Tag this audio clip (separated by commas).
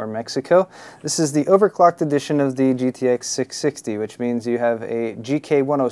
Speech